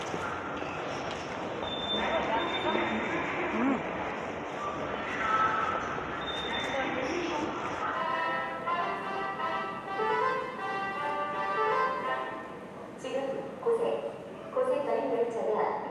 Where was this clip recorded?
in a subway station